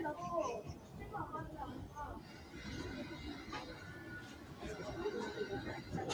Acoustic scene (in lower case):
residential area